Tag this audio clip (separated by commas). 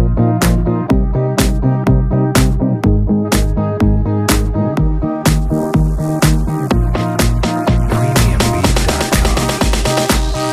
Music